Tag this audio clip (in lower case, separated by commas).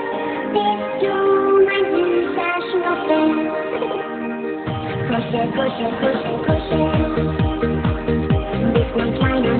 music